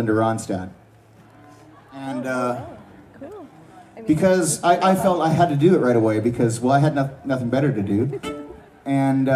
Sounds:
Speech, Music

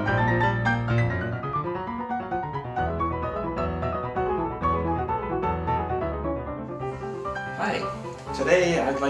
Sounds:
Music, Speech

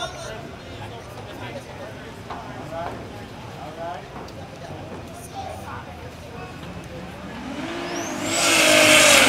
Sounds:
Speech

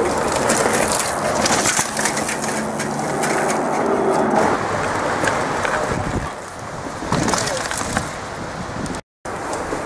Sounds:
Bicycle, Vehicle, Speech, outside, rural or natural

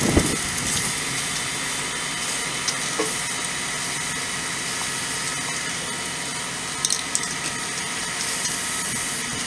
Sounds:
Spray

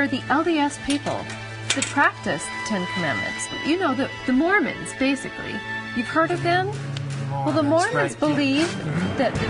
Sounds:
Speech, Music

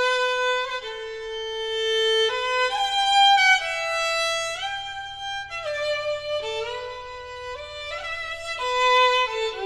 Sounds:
Musical instrument, Music, Violin

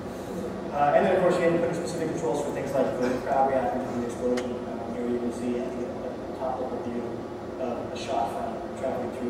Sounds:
Speech

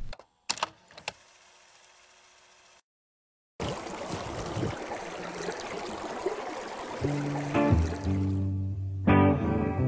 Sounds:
dribble, Music

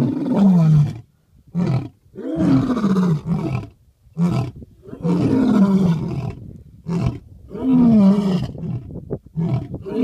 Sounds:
lions roaring

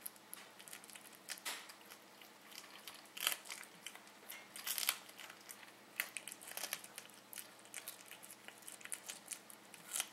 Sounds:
Animal, Cat, pets

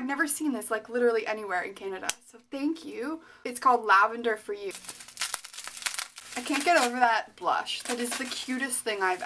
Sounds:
inside a small room, Speech

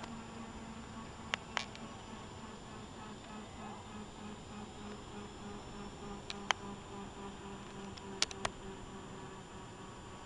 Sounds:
Vehicle, Helicopter

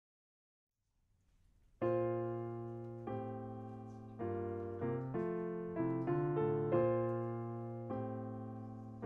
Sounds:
Music

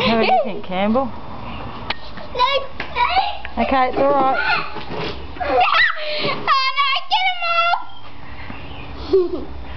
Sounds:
Speech

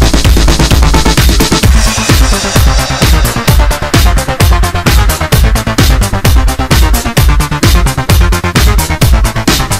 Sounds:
Music

